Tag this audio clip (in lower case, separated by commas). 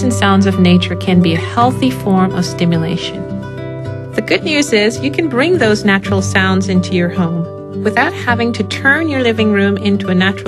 music, speech